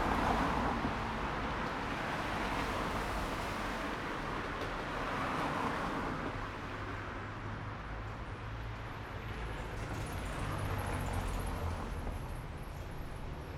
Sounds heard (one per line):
bus wheels rolling
bus
car wheels rolling
car